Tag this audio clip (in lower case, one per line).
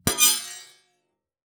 screech